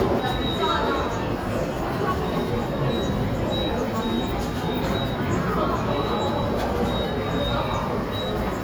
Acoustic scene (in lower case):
subway station